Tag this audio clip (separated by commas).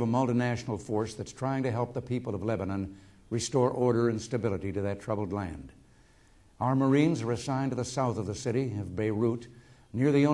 man speaking, Speech, Narration